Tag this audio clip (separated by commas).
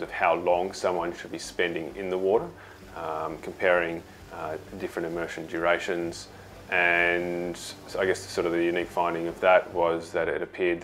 Speech, Music